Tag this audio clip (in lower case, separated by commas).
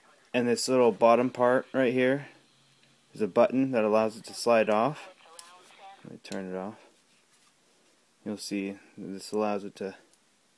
speech, radio